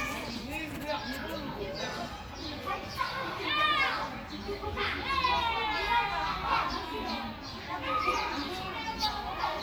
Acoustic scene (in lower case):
park